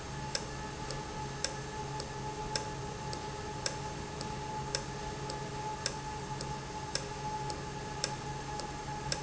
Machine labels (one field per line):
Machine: valve